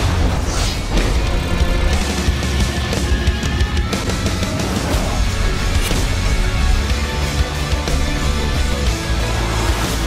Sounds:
music

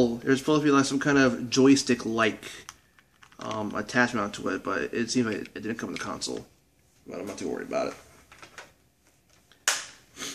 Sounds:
inside a small room, speech

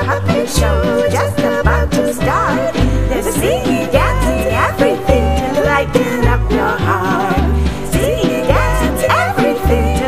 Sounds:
guitar, strum, music, musical instrument

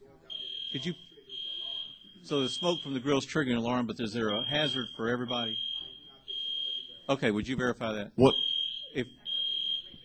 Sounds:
speech, buzzer

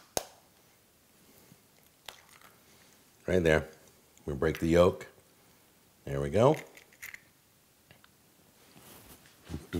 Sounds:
speech, inside a small room

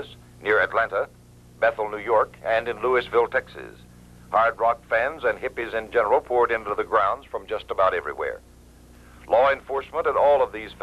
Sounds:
speech

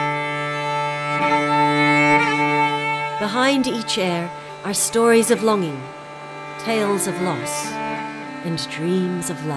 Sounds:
speech, musical instrument, music

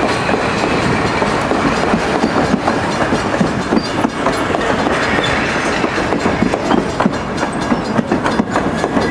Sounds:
rail transport, railroad car, clickety-clack, train

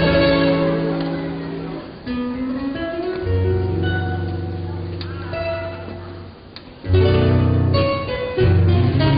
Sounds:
plucked string instrument, guitar, music, musical instrument

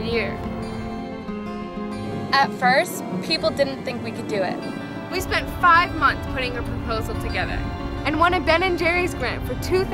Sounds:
speech, music

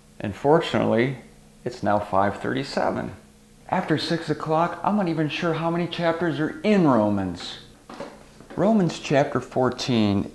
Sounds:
speech

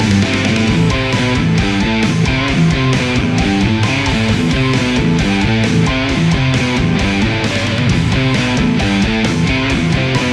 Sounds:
music, electric guitar, musical instrument, plucked string instrument, guitar

